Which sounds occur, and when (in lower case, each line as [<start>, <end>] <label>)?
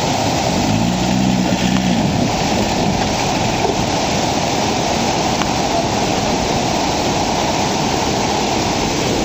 [0.00, 9.24] motor vehicle (road)
[0.00, 9.24] stream
[0.51, 1.90] revving
[1.70, 1.78] generic impact sounds
[5.36, 5.42] generic impact sounds